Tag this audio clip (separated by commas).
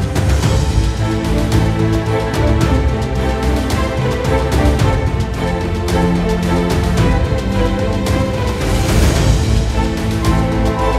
Music